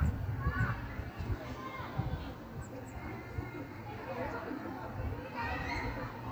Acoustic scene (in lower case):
park